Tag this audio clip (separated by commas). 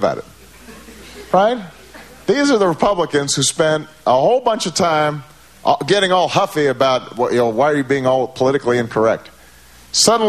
Speech